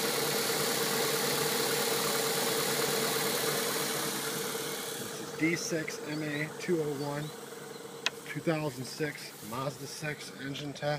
A vehicle engine idles then a man begins talking